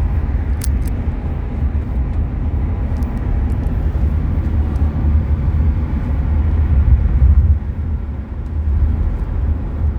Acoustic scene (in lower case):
car